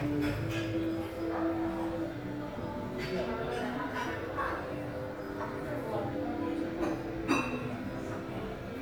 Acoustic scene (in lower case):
crowded indoor space